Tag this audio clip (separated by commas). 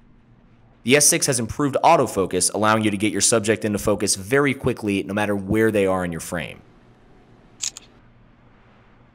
Speech